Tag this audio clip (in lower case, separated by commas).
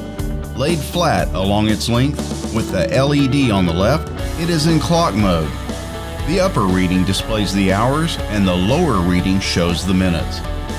speech, music